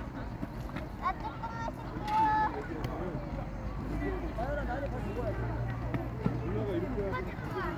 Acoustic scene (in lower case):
park